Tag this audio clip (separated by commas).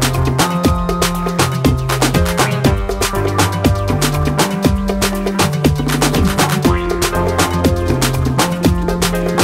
Afrobeat